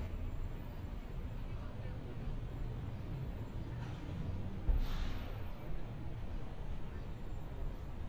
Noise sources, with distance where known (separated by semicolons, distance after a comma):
large-sounding engine, far; person or small group talking, far